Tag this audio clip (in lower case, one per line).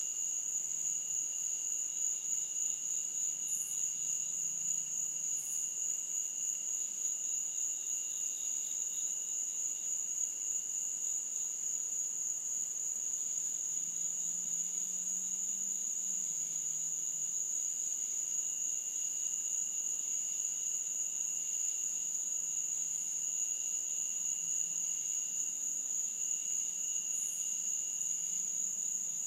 animal
wild animals
frog